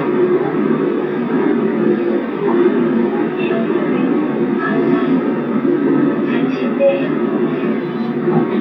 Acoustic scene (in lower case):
subway train